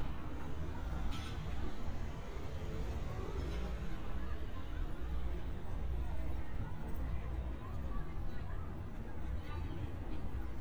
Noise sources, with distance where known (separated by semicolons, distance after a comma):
background noise